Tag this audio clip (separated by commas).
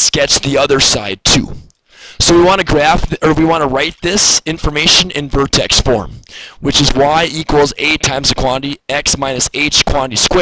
Speech